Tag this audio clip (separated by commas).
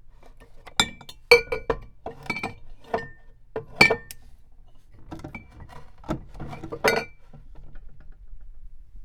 Glass, Chink